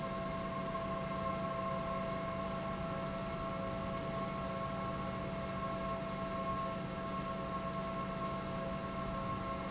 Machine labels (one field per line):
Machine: pump